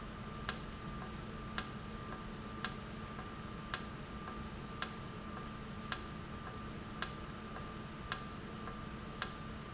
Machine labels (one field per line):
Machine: valve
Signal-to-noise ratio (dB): 0 dB